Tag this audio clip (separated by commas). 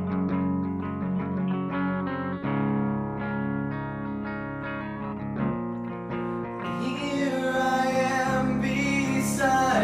Music